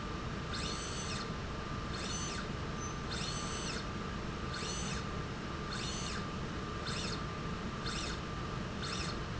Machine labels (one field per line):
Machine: slide rail